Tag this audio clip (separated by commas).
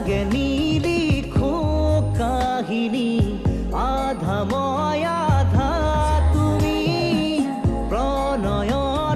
Music, Music of Asia, Music of Bollywood